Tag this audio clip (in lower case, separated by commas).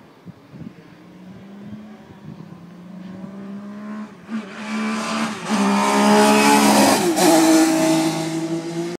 car passing by, car, vehicle, motor vehicle (road)